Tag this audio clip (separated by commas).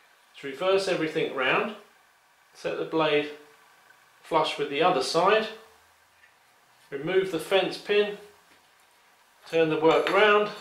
Speech